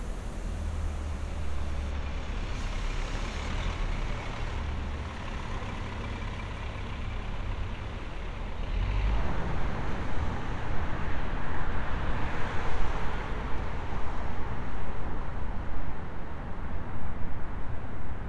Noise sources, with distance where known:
engine of unclear size

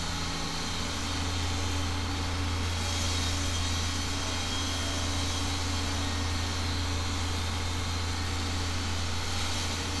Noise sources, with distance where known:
unidentified impact machinery, far

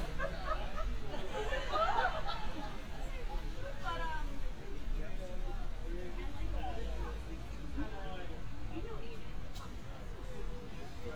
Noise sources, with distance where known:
person or small group talking, near

